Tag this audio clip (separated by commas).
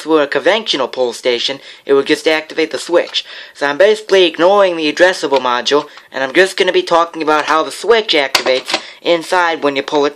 Speech